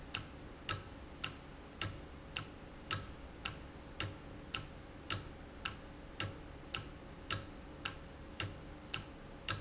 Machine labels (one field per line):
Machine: valve